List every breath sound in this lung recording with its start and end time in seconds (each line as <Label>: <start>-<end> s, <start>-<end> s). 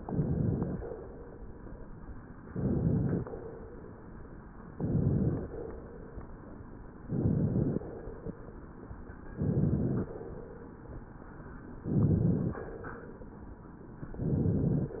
Inhalation: 0.00-0.84 s, 2.45-3.28 s, 4.72-5.56 s, 7.06-7.89 s, 9.30-10.13 s, 11.86-12.66 s, 14.19-14.99 s